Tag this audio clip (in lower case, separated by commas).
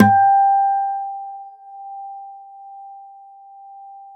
acoustic guitar, musical instrument, music, plucked string instrument, guitar